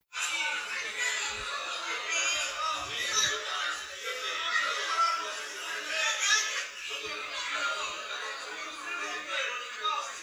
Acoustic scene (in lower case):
crowded indoor space